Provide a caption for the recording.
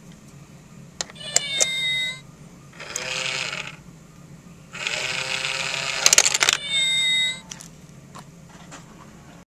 Machine is emitting a meow noise